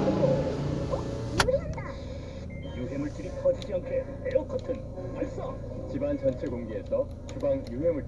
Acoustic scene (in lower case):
car